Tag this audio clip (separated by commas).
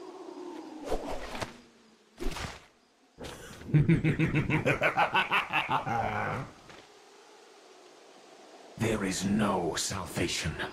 Whoosh